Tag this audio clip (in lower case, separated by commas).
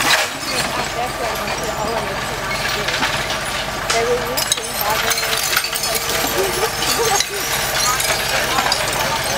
speech, vehicle